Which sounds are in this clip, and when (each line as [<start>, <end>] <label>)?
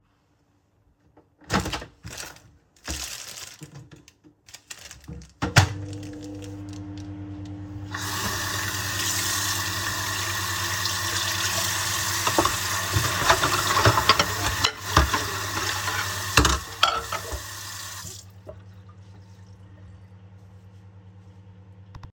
[1.38, 22.07] microwave
[7.92, 18.16] running water
[12.23, 17.20] cutlery and dishes